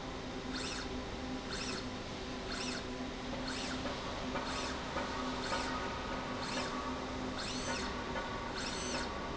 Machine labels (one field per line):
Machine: slide rail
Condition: normal